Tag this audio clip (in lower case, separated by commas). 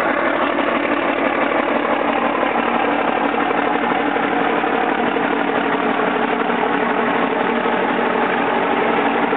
vehicle, truck